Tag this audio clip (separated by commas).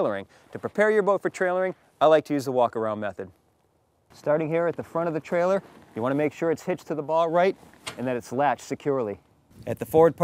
Speech